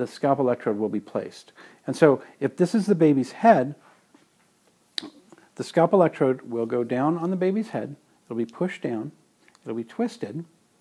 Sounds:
speech

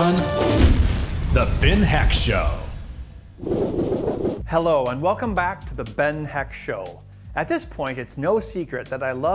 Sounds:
music, speech

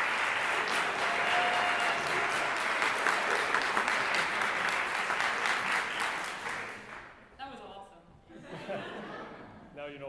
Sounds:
speech

